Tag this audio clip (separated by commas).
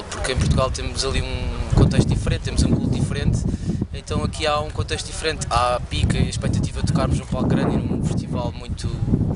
Speech